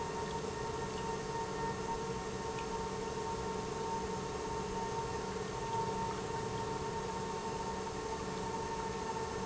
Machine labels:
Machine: pump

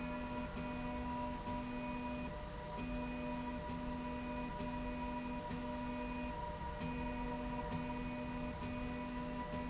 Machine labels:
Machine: slide rail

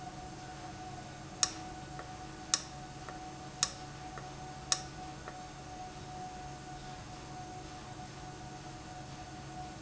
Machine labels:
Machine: valve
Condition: abnormal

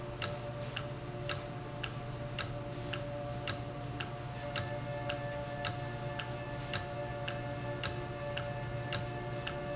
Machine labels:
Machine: valve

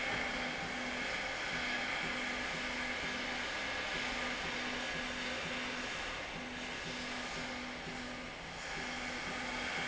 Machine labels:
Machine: slide rail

